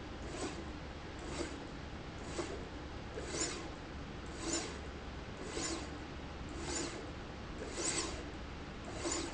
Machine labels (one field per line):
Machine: slide rail